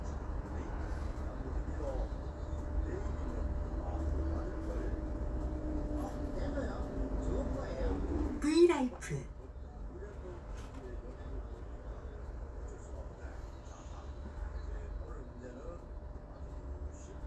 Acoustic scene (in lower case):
bus